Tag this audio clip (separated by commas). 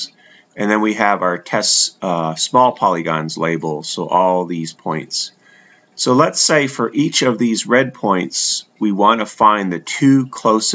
Speech